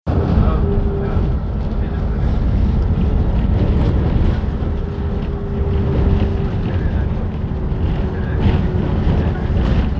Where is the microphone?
on a bus